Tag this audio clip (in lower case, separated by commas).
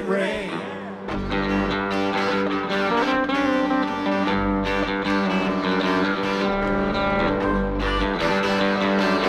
country, singing, music